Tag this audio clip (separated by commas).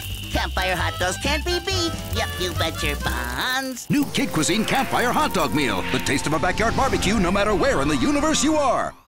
Music, Speech